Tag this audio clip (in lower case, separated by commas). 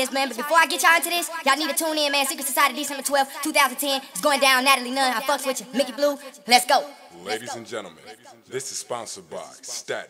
speech